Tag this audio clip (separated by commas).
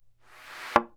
thud